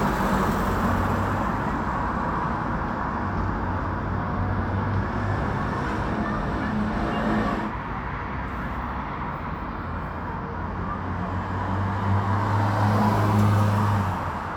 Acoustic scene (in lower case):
street